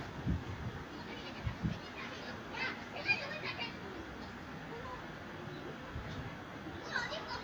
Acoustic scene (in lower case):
residential area